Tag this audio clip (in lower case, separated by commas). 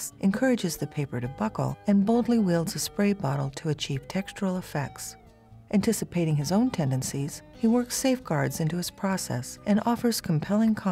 music, speech